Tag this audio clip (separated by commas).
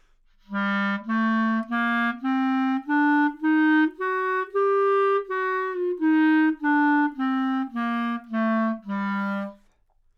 Musical instrument, Wind instrument, Music